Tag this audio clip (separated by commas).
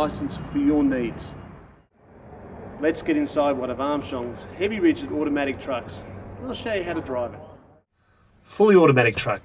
Speech